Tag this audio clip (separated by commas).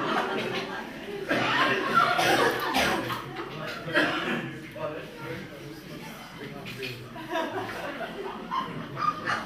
Speech